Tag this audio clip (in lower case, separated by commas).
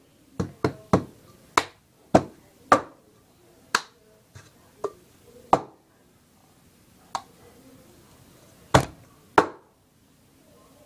inside a small room